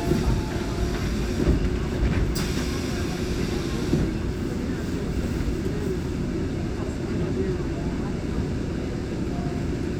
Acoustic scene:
subway train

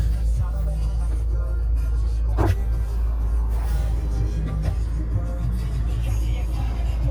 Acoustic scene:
car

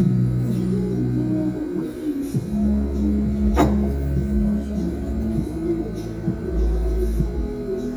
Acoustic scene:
restaurant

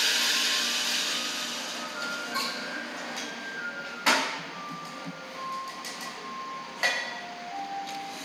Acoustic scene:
cafe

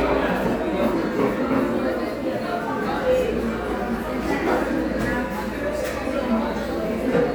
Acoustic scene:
cafe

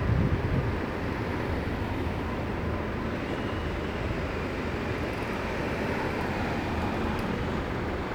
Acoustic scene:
street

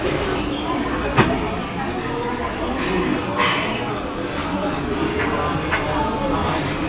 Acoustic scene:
restaurant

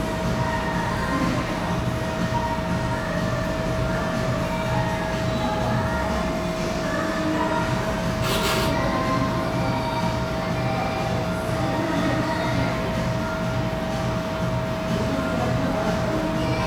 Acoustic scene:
cafe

